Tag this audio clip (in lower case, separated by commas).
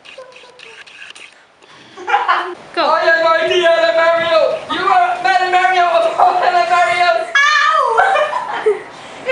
speech, laughter